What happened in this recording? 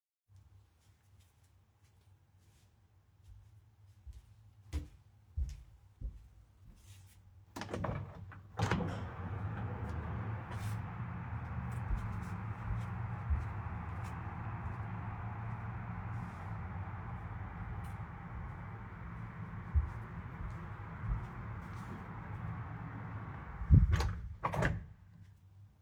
I walked to the window, opened it, walked around the room and then closed the window